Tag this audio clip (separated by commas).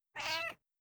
Cat, pets, Meow, Animal